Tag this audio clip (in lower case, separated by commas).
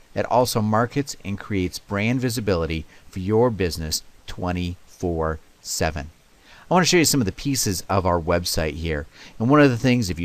speech